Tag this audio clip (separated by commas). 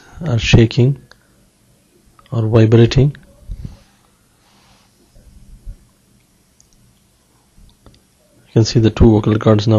Speech